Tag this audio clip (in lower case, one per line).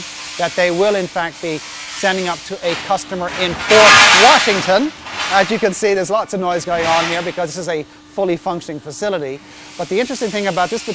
speech